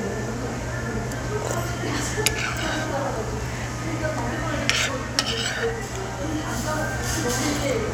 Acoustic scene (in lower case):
restaurant